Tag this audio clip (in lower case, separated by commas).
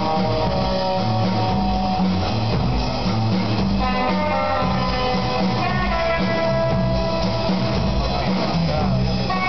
music